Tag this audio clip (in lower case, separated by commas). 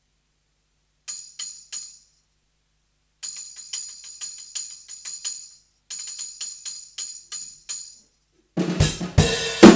playing tambourine